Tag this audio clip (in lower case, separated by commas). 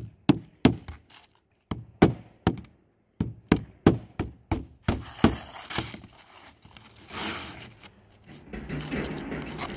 hammering nails